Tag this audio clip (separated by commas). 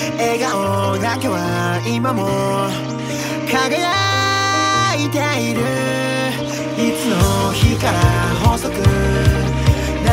Music